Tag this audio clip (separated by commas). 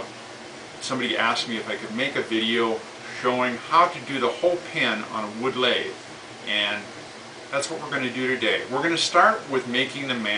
Speech